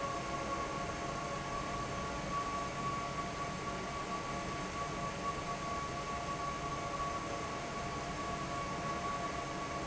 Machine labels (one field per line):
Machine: fan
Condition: normal